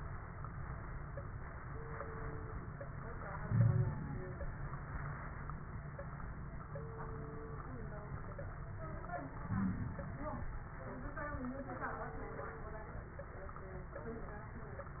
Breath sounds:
Inhalation: 3.46-4.25 s, 9.51-10.21 s
Wheeze: 3.46-3.92 s, 9.51-9.84 s

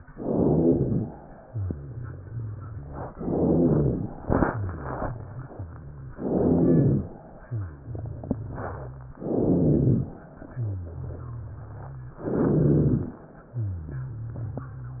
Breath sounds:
Inhalation: 0.00-1.11 s, 3.13-4.14 s, 6.18-7.13 s, 9.17-10.20 s, 12.19-13.19 s
Exhalation: 1.20-3.09 s, 4.20-6.17 s, 7.19-9.14 s, 10.26-12.15 s, 13.21-15.00 s
Rhonchi: 0.00-1.11 s, 1.41-3.09 s, 3.13-4.14 s, 4.46-6.17 s, 6.18-7.13 s, 7.41-9.14 s, 9.17-10.20 s, 10.48-12.15 s, 12.19-13.19 s, 13.45-15.00 s

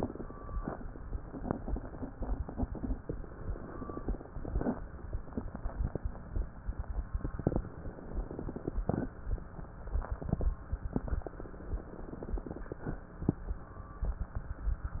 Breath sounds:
Inhalation: 2.82-4.50 s, 7.60-8.77 s, 11.11-12.80 s
Exhalation: 0.56-0.96 s, 4.54-4.95 s, 8.80-9.21 s, 12.85-13.26 s
Crackles: 2.82-4.49 s, 7.56-8.73 s, 11.09-12.76 s

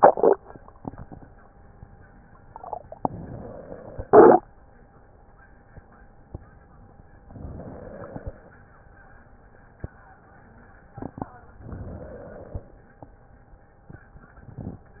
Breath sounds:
Inhalation: 3.04-4.06 s, 7.19-8.55 s, 11.57-12.93 s

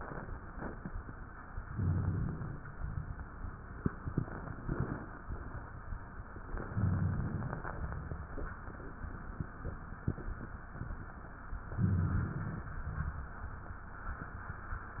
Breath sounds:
Inhalation: 1.67-2.64 s, 6.51-7.61 s, 11.76-12.71 s
Exhalation: 2.77-3.23 s, 7.78-8.24 s, 12.83-13.28 s

